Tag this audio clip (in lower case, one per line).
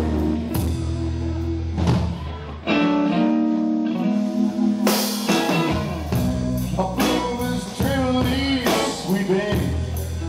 music